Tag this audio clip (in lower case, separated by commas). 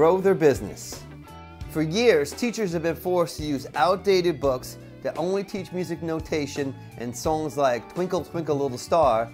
speech, punk rock, progressive rock, music